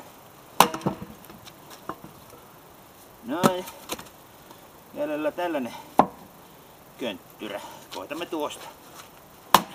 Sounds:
speech, outside, rural or natural

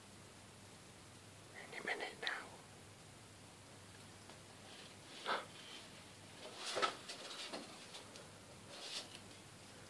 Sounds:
speech

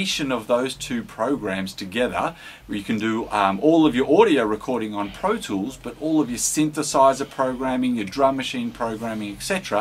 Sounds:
speech

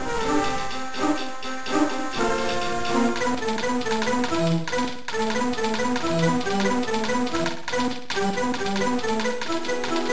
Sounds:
music

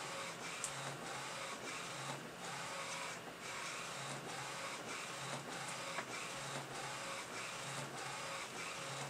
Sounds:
printer

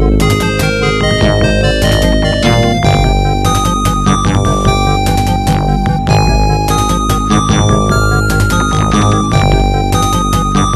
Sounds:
music, video game music

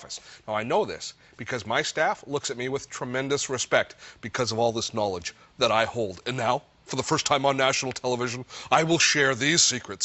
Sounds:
speech

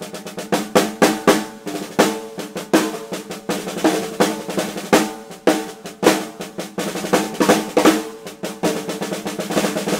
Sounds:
music

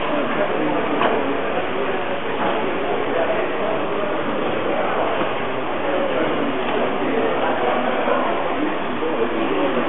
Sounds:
speech

